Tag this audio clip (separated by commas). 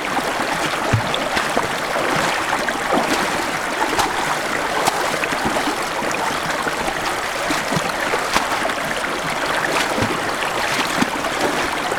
Stream, Water